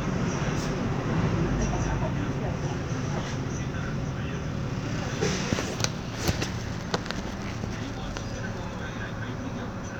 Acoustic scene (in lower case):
bus